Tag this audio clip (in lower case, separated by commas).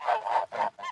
bird, fowl, livestock, wild animals, animal